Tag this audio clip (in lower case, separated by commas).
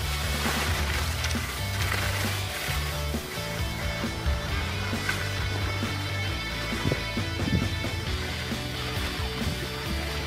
skiing